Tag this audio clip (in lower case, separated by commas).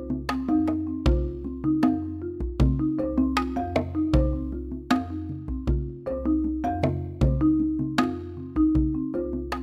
music